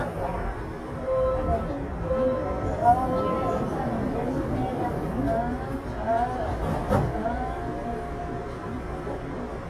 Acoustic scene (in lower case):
subway train